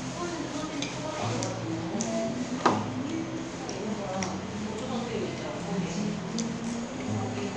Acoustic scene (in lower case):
restaurant